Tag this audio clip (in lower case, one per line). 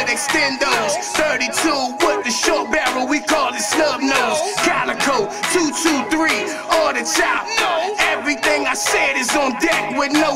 music